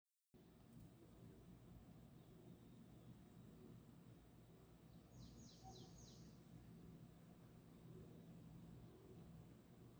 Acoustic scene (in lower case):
park